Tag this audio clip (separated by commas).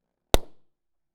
Explosion